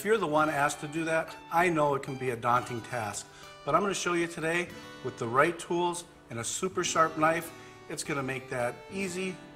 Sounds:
Speech, Music

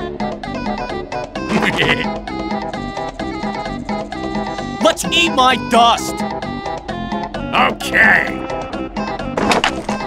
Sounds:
Music, Speech

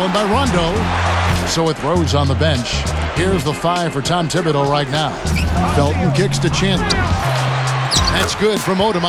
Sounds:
Applause, Music, Sound effect, Speech

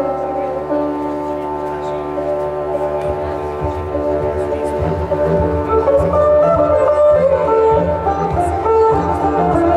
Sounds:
Music, Speech

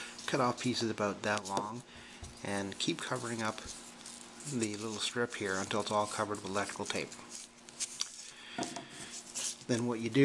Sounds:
inside a small room, Speech

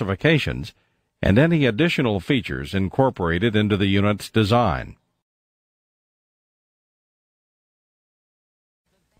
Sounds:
Speech

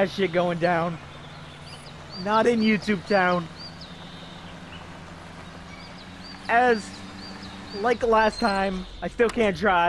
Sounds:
Animal, Speech

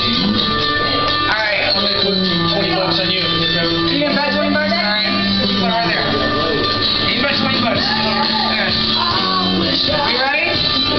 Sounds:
Music, Speech

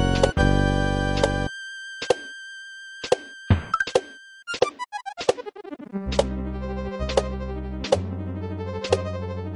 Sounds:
Music

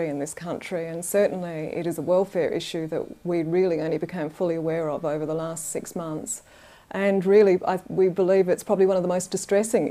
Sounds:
Speech

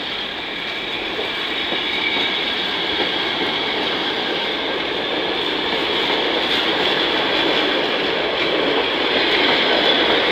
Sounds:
underground, Railroad car, Rail transport, Train, Clickety-clack

